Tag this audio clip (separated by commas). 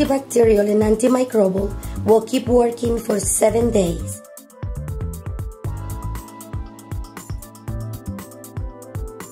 Speech, Music